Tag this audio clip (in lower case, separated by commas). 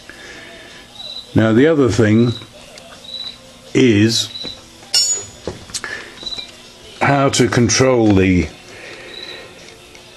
music, speech